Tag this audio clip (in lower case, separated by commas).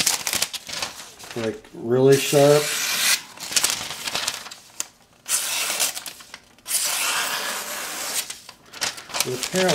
speech, inside a small room, tools